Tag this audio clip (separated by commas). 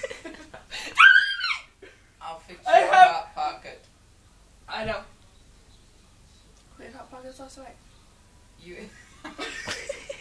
Speech